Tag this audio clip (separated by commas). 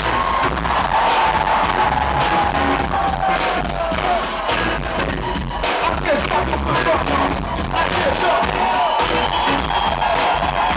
Music